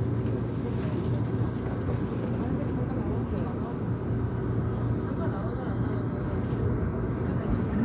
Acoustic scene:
subway train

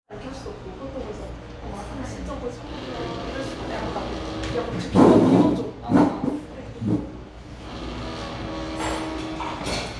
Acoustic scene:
cafe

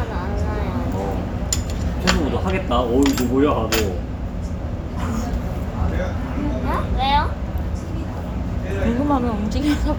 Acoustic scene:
restaurant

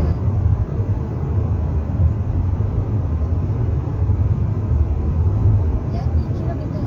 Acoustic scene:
car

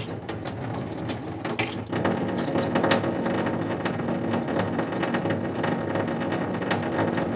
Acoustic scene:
restroom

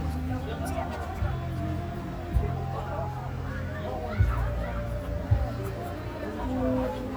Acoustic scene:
park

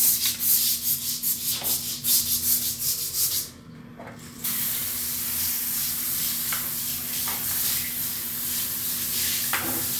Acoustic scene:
restroom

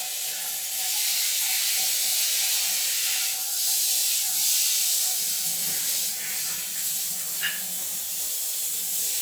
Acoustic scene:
restroom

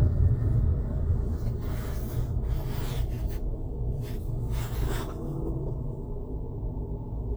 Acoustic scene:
car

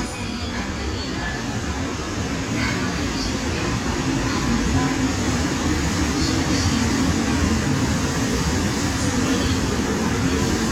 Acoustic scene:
subway station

